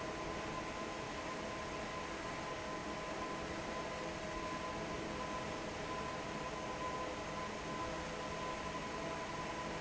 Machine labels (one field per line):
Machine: fan